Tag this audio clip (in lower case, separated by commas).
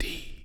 human voice, whispering